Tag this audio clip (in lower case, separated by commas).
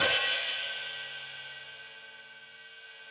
music, musical instrument, cymbal, hi-hat, percussion